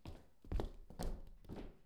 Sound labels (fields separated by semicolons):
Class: footsteps; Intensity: medium